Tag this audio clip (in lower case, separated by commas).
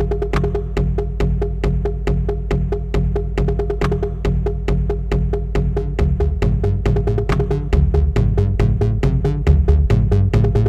drum machine, music, drum, musical instrument